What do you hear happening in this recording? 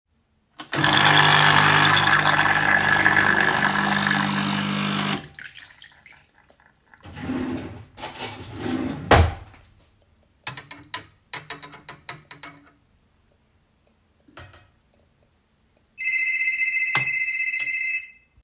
I turned on the coffee machine and waited for it to finish. I opened a drawer, took out a spoon, and stirred it in a cup. While stirring, my phone rang on the counter.